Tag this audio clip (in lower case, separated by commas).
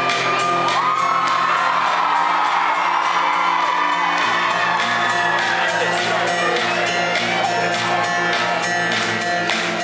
music, speech